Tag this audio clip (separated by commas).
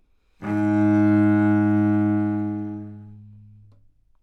Music, Musical instrument, Bowed string instrument